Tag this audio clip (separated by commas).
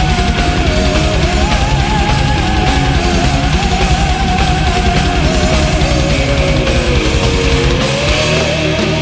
Music, Punk rock